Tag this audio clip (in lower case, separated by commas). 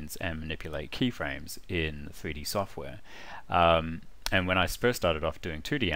speech